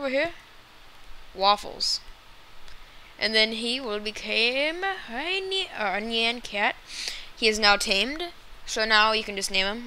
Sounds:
speech

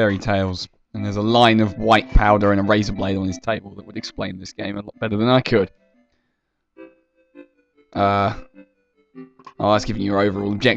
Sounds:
speech

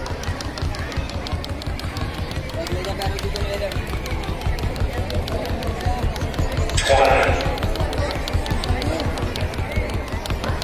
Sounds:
rope skipping

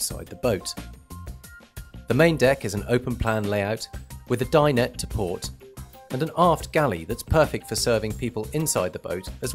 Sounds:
speech
music

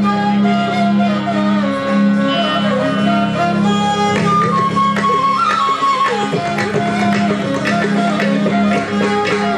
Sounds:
flute
musical instrument
music
fiddle
traditional music

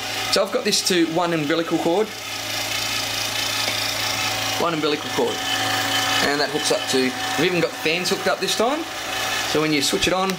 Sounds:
engine
speech

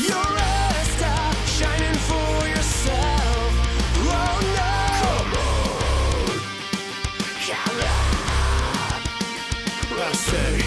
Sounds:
music
disco

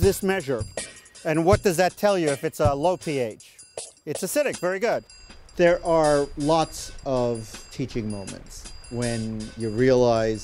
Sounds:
music
speech
stream

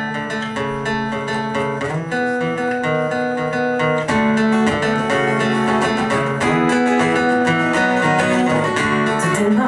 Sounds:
music

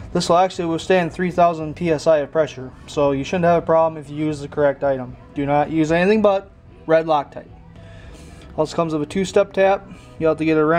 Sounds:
speech

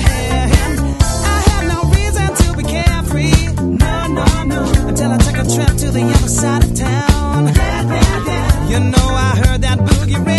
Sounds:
funk
rhythm and blues
music
disco

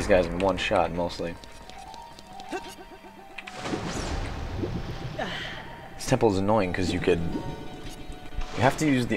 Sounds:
speech

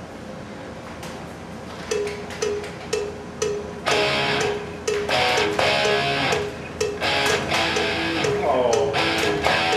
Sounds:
music

